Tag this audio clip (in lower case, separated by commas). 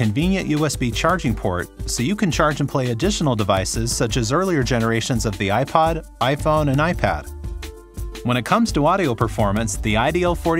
speech, music